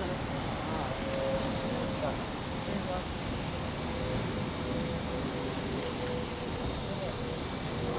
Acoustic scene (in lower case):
street